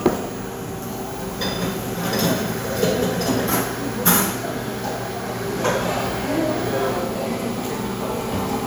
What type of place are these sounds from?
cafe